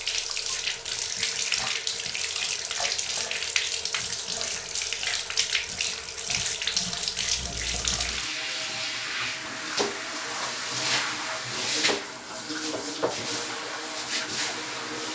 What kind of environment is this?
restroom